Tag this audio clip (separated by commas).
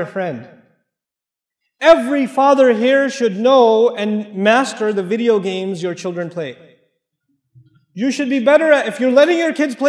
Speech